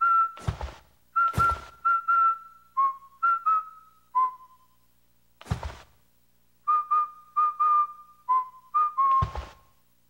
A recording of whistling is played while someone pats on clothing